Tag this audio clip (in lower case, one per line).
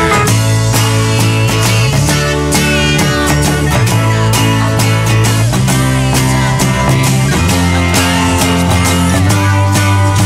guitar
plucked string instrument
strum
acoustic guitar
musical instrument
music